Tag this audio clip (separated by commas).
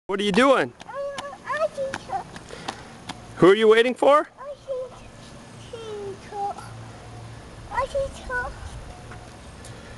Speech, kid speaking